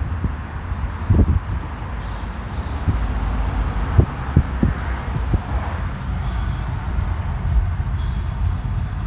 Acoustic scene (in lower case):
car